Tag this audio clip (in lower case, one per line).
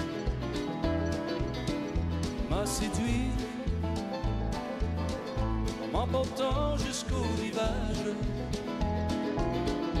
music